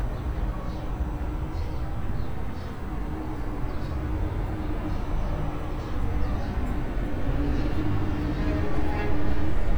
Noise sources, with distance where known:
engine of unclear size; car horn

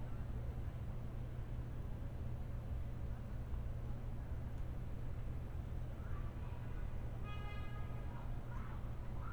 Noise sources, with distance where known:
car horn; unidentified human voice, far

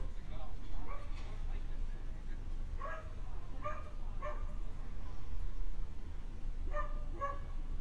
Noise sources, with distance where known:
dog barking or whining

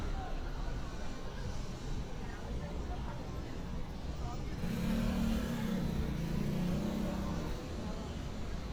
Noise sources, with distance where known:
small-sounding engine

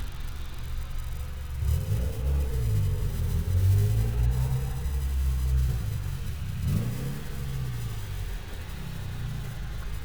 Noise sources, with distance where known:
engine of unclear size, near

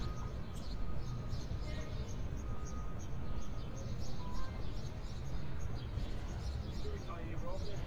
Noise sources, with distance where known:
reverse beeper, far; person or small group talking

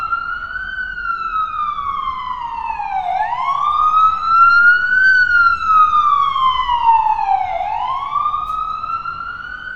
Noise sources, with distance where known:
siren, near

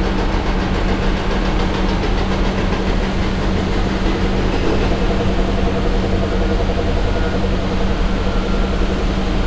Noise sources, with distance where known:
pile driver, near

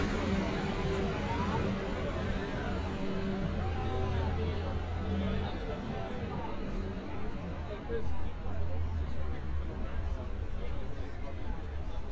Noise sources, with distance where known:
person or small group talking

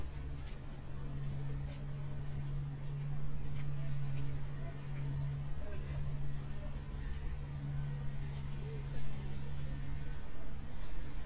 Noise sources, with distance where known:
background noise

